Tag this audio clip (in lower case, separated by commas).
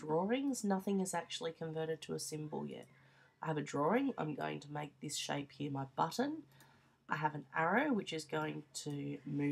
speech